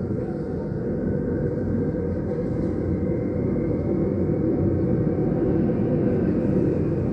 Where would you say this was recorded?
on a subway train